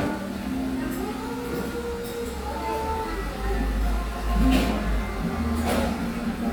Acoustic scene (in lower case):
cafe